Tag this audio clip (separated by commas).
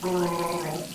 Liquid